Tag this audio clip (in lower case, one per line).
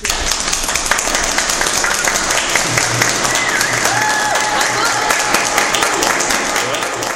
crowd
human group actions
applause